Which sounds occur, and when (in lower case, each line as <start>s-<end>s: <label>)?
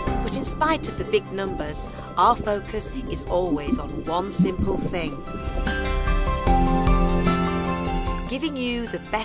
0.0s-1.8s: woman speaking
0.0s-5.7s: gurgling
0.0s-9.2s: music
2.2s-5.2s: woman speaking
8.3s-9.2s: woman speaking